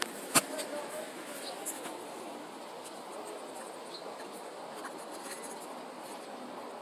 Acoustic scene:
residential area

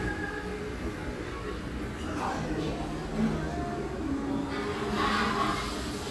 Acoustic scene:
restaurant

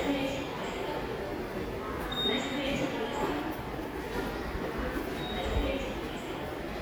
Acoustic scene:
subway station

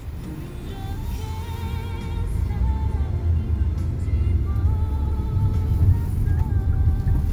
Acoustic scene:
car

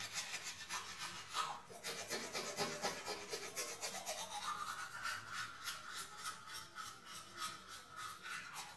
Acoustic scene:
restroom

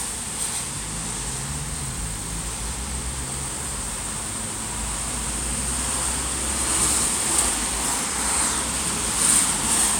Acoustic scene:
street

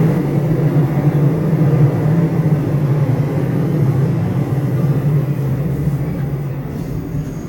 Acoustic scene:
subway train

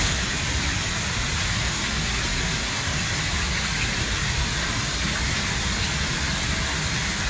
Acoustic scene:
park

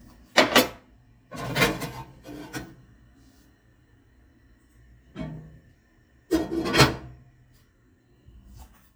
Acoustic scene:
kitchen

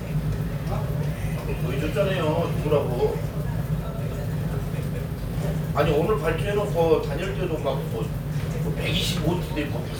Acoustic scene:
restaurant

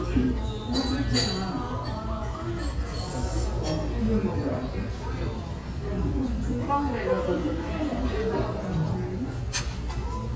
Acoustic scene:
restaurant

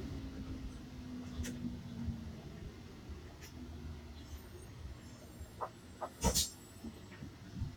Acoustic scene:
bus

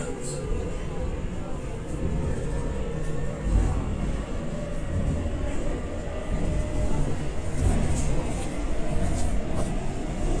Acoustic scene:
subway train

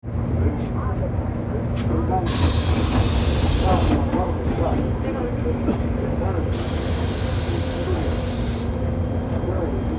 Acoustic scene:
subway train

